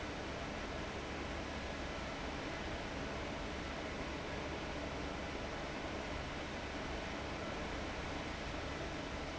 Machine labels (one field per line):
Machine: fan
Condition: abnormal